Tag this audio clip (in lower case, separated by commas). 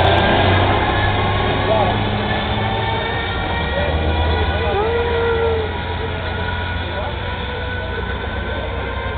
vehicle, truck, speech